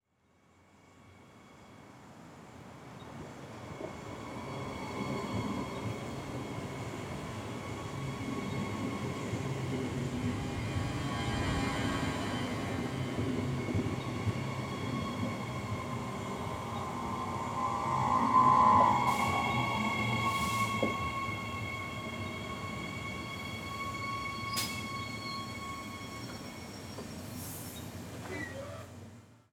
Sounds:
rail transport, train, vehicle

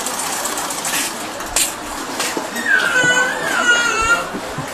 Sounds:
crying, human voice

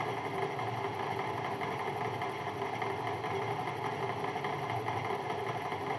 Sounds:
drill, tools, power tool

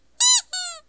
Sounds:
squeak

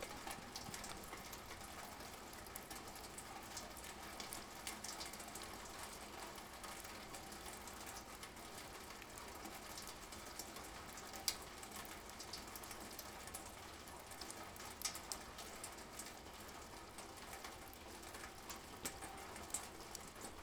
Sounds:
water, rain

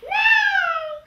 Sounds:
human voice, speech

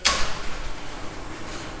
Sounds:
mechanisms

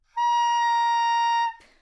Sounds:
musical instrument, music, wind instrument

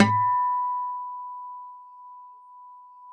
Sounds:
music, acoustic guitar, guitar, plucked string instrument, musical instrument

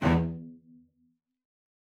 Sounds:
musical instrument, bowed string instrument, music

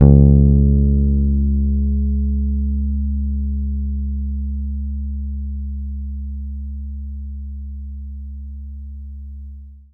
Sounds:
bass guitar, guitar, music, musical instrument, plucked string instrument

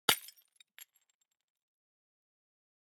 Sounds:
glass, shatter

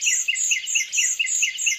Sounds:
bird, wild animals, tweet, bird vocalization, animal

